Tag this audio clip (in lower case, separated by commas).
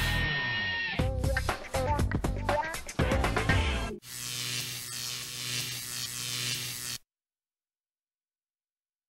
music